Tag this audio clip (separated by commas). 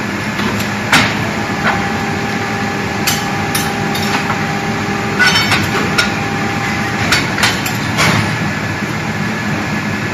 Engine